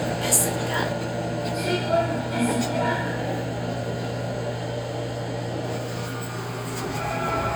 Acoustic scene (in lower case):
subway train